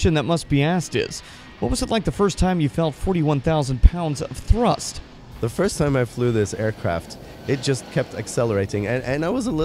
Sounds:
Heavy engine (low frequency), Vehicle, Speech, Aircraft, Engine

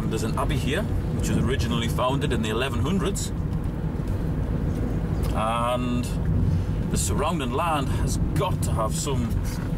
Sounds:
Speech

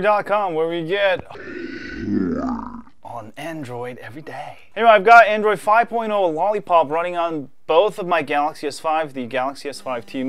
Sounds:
Speech, inside a small room

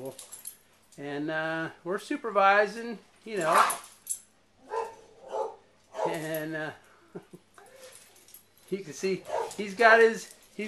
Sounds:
Speech, Animal, Dog

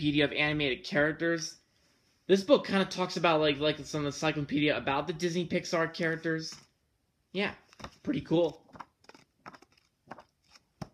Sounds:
Speech, inside a small room

